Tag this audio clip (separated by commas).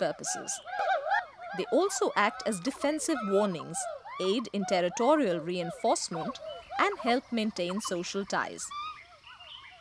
gibbon howling